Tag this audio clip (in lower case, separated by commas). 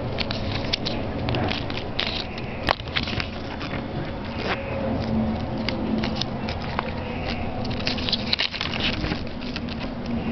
wind noise (microphone)